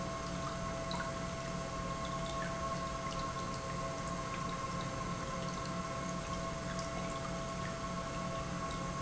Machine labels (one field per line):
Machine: pump